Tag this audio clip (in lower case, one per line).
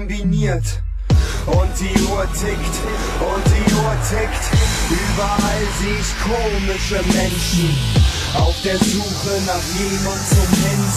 speech
dubstep
music
electronic music